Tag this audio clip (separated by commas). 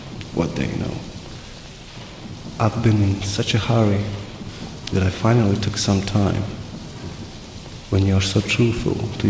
Raindrop, Rain, Rain on surface